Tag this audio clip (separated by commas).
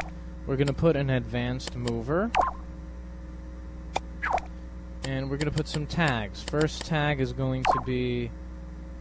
Speech